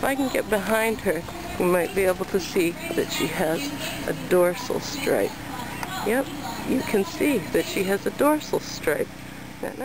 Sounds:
speech

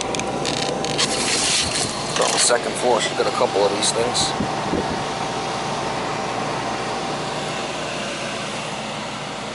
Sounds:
air conditioning
speech

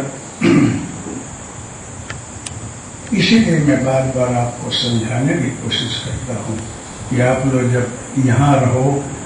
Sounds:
speech

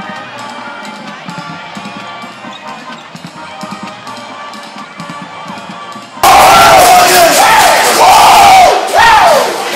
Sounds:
crowd

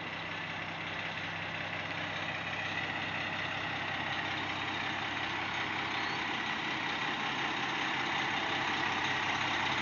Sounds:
vehicle
truck

